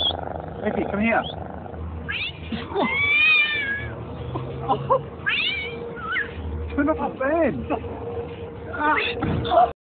Male owner laughing and calling for his cat who is crying and meowing